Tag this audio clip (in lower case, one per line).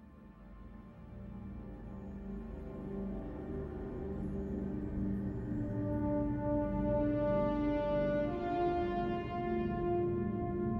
music